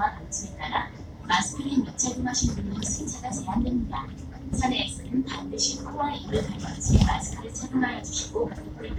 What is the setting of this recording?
bus